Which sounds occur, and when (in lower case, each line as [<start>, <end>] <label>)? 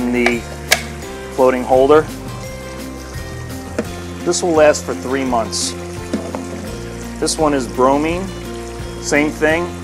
[0.00, 0.43] male speech
[0.00, 9.83] liquid
[0.00, 9.83] music
[0.23, 0.29] tick
[0.69, 0.75] tick
[1.35, 2.00] male speech
[3.76, 3.83] tick
[4.18, 5.75] male speech
[6.10, 6.17] tick
[6.31, 6.36] tick
[7.16, 8.31] male speech
[9.02, 9.72] male speech